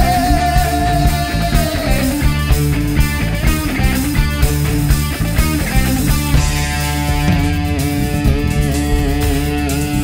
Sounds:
Guitar, Singing, Electric guitar, Drum, Music, Rock music

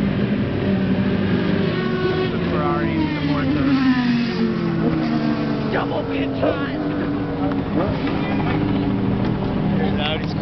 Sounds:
Car, Vehicle, auto racing, Speech, outside, urban or man-made

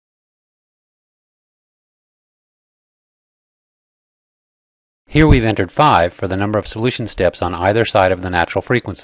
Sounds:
Speech

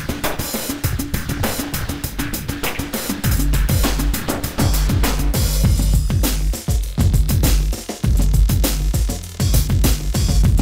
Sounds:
Drum machine, Music

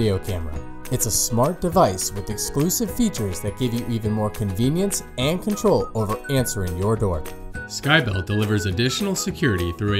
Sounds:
Speech, Music

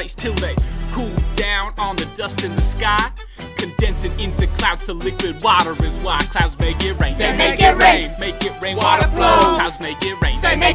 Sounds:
Speech, Music

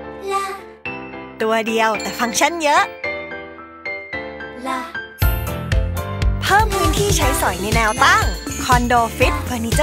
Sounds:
Music, Speech

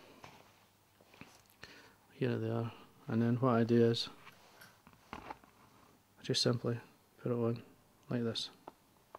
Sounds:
Speech, inside a small room

